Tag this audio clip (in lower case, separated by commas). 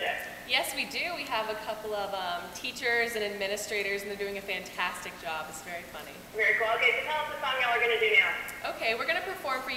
speech